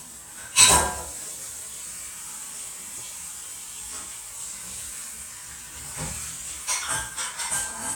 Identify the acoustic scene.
kitchen